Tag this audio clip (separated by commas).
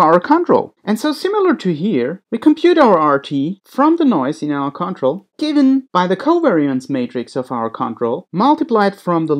Speech